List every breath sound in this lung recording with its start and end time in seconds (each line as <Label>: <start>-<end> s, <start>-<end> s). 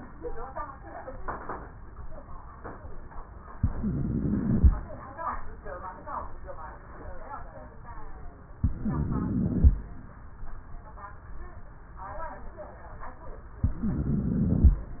Inhalation: 3.56-4.77 s, 8.61-9.76 s, 13.65-14.81 s
Wheeze: 3.56-4.77 s, 8.61-9.76 s, 13.65-14.81 s